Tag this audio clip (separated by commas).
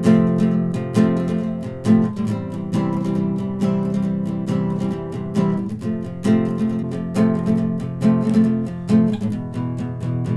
Acoustic guitar, Guitar, Music